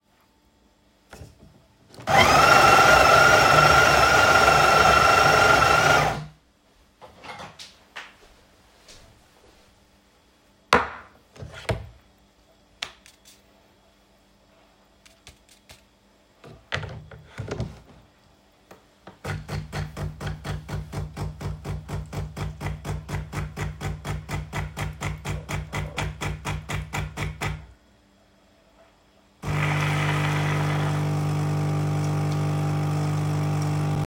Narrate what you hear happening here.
I prepare a coffee using the coffee machine. I start the machine and place a cup underneath while handling a spoon and cup on the counter.